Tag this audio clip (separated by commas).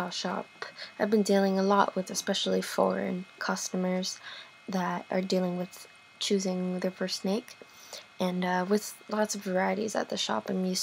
inside a small room, Speech